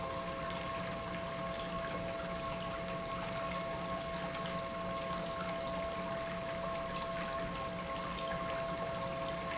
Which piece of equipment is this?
pump